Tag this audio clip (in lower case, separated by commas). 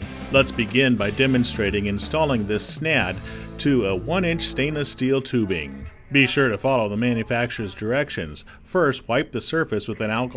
speech, music